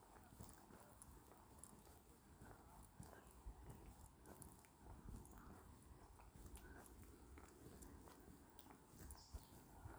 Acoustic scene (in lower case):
park